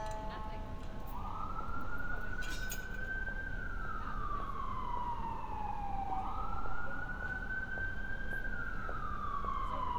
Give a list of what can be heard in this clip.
car horn, siren, person or small group talking